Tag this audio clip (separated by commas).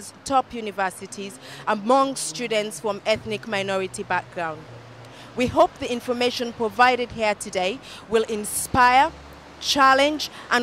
Speech